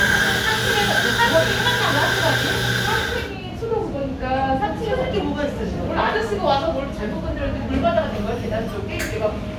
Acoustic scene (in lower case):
cafe